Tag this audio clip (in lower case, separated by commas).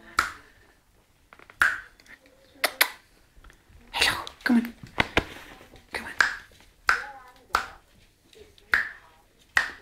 speech, inside a small room